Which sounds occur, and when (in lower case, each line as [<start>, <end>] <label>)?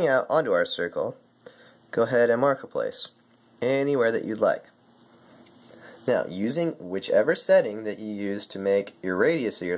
[0.00, 1.13] male speech
[0.00, 9.75] mechanisms
[1.42, 1.74] breathing
[1.91, 3.12] male speech
[3.14, 3.47] generic impact sounds
[3.56, 4.72] male speech
[5.38, 5.53] generic impact sounds
[5.64, 6.00] breathing
[6.04, 8.84] male speech
[8.99, 9.75] male speech